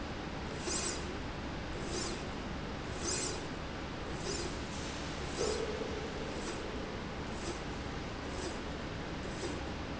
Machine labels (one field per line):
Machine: slide rail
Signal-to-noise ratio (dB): -6 dB